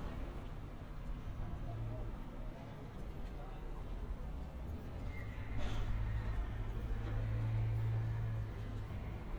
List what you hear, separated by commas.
person or small group talking